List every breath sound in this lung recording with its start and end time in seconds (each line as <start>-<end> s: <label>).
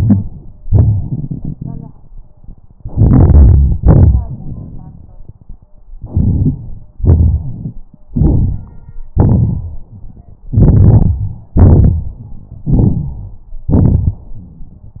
2.77-3.77 s: rhonchi
2.81-3.76 s: inhalation
3.77-5.70 s: rhonchi
3.79-5.69 s: exhalation
5.99-6.92 s: rhonchi
6.03-6.93 s: inhalation
7.00-8.01 s: exhalation
7.40-7.65 s: wheeze
8.12-9.11 s: inhalation
8.14-9.14 s: rhonchi
9.14-10.37 s: rhonchi
9.18-10.40 s: exhalation
10.49-11.53 s: rhonchi
10.51-11.55 s: inhalation
11.61-12.65 s: rhonchi
11.61-12.65 s: exhalation
12.67-13.71 s: rhonchi
12.69-13.74 s: inhalation
13.75-15.00 s: rhonchi
13.77-15.00 s: exhalation